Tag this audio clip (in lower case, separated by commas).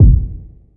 drum, music, percussion, bass drum, musical instrument